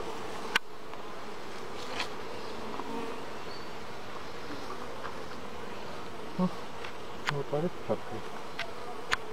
Faint buzzing with man talking at end